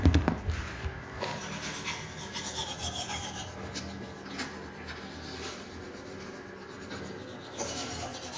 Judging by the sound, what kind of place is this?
restroom